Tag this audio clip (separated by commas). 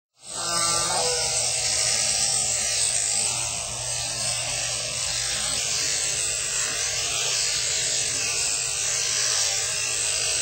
Electric shaver